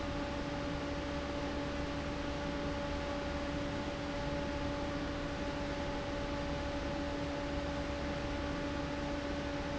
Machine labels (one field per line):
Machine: fan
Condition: abnormal